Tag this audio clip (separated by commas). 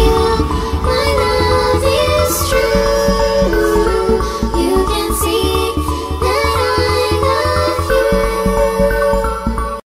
Exciting music, Music